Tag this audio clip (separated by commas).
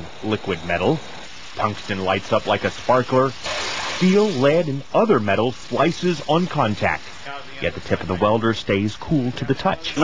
Speech